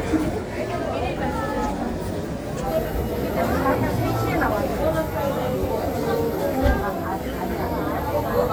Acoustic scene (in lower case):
crowded indoor space